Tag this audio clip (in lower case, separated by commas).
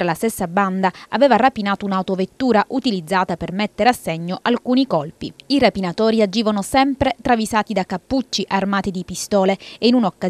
speech